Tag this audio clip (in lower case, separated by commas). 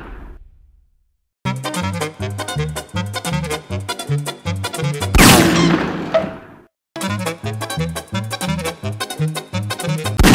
music, gunshot